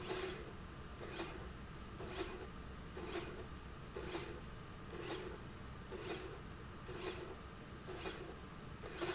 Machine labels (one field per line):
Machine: slide rail